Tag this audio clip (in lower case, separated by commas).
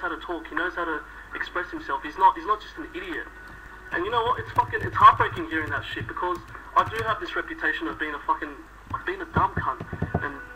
speech, male speech